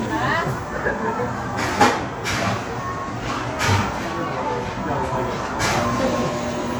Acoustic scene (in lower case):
crowded indoor space